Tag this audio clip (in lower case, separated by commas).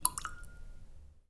drip, liquid, rain, raindrop, water